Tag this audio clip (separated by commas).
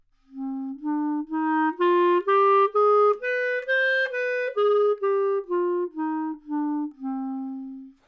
Musical instrument, Music, Wind instrument